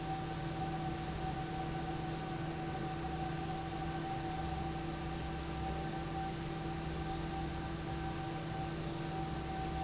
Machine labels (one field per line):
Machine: fan